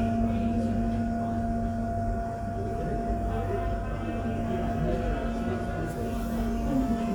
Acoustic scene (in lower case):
subway station